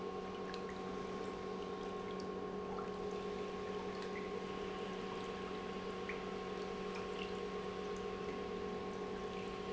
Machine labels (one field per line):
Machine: pump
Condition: normal